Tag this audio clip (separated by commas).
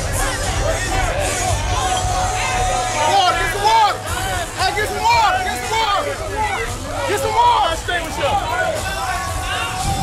Music, Speech